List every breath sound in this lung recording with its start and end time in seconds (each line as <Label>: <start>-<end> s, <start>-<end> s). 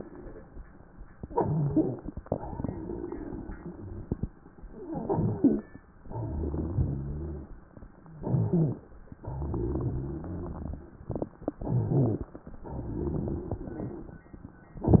Inhalation: 1.16-2.18 s, 4.69-5.74 s, 8.13-8.81 s, 11.57-12.42 s
Exhalation: 2.23-4.28 s, 5.96-7.58 s, 9.17-10.92 s, 12.53-14.22 s
Wheeze: 2.23-3.03 s, 6.11-7.46 s
Stridor: 1.31-2.18 s, 4.69-5.74 s, 8.13-8.81 s, 11.68-12.24 s